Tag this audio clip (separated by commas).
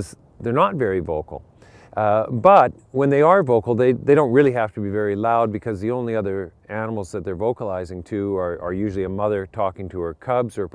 Speech